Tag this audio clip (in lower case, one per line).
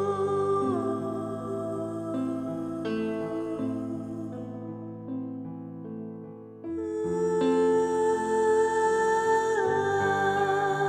music